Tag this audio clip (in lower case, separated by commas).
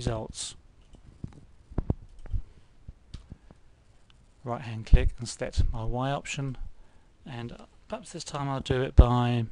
speech, inside a small room